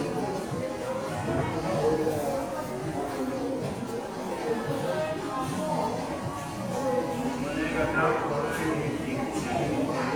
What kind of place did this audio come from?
crowded indoor space